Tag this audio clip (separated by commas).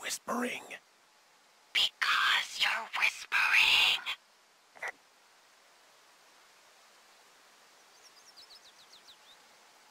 Speech